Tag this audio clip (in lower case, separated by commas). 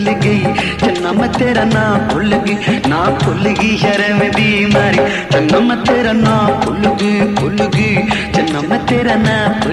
music, singing, music of bollywood